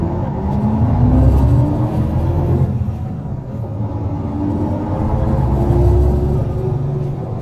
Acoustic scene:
bus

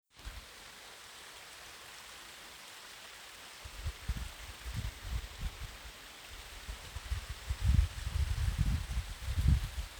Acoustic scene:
park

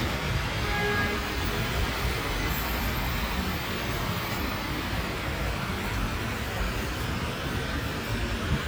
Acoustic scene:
street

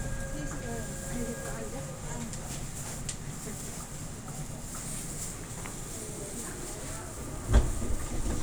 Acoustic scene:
subway train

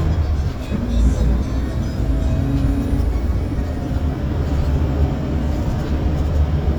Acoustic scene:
bus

